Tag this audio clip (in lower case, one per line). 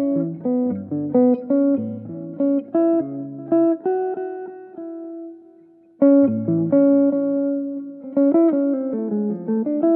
guitar
musical instrument
music